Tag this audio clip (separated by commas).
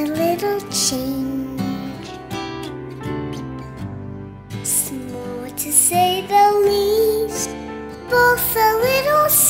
child singing